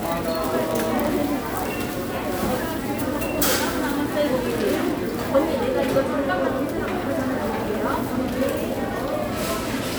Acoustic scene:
crowded indoor space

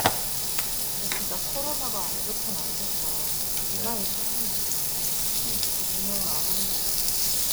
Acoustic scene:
restaurant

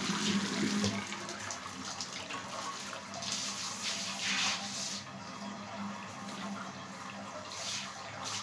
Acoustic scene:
restroom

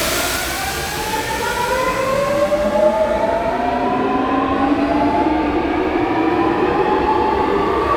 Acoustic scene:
subway station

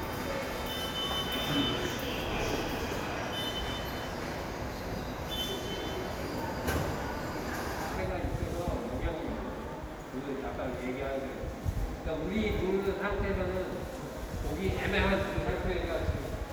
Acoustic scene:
subway station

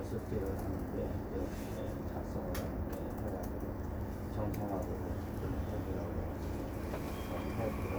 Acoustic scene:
subway train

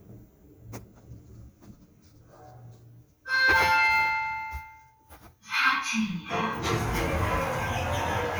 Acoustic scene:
elevator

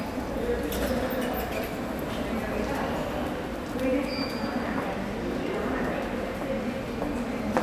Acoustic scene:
subway station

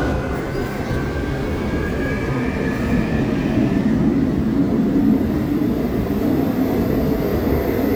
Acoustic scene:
subway train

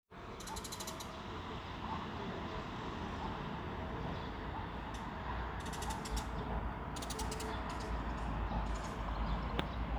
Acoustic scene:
park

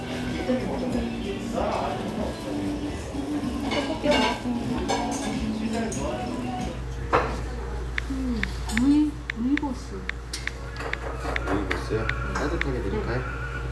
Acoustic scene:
restaurant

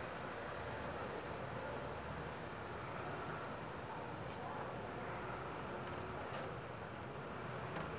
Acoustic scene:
residential area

